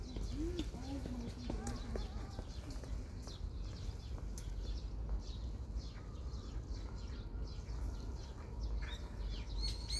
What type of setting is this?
park